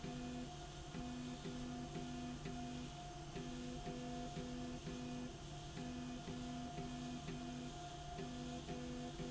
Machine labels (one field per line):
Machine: slide rail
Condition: normal